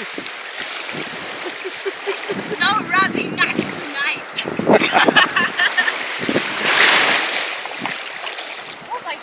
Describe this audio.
Water is splashing and people are talking and laughing